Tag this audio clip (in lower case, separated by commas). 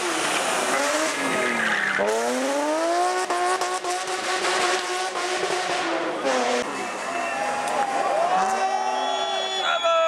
vehicle, race car, skidding, car